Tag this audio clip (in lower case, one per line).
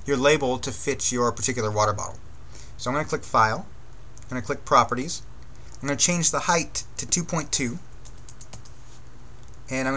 speech